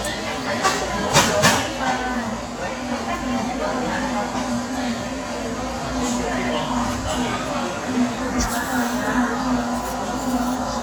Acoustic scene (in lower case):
cafe